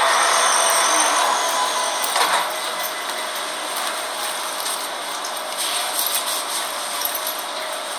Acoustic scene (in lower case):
subway train